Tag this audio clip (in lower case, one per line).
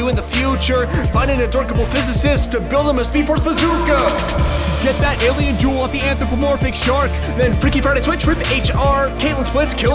rapping